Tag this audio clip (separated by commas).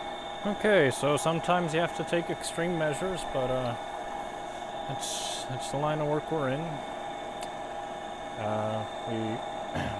printer printing